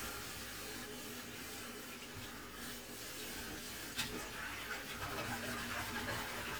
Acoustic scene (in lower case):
kitchen